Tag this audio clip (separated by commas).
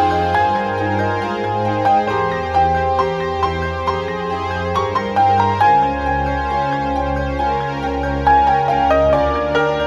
Background music